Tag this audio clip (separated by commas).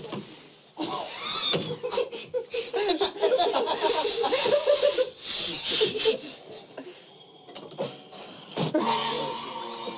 Belly laugh, inside a large room or hall, people belly laughing